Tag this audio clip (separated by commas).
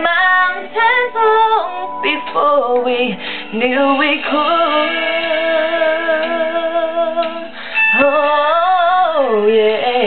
Female singing